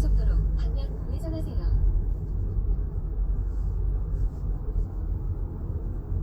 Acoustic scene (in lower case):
car